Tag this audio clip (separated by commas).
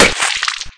Liquid, Splash